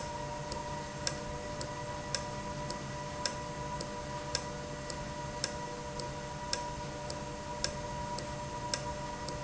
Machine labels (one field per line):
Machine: valve